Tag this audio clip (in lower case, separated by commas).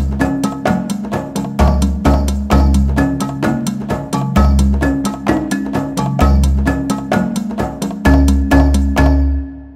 music, wood block